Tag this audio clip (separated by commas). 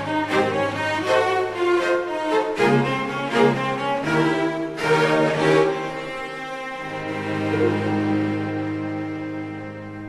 Music, Cello